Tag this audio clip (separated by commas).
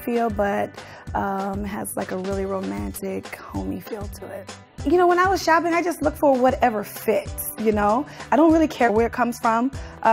Music, Speech